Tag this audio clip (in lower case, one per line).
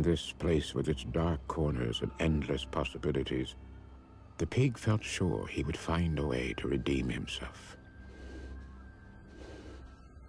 speech
music